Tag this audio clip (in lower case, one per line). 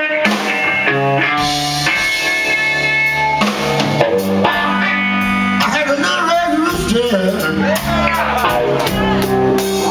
music